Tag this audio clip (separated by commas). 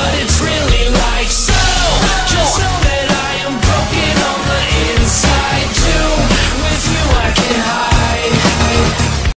Music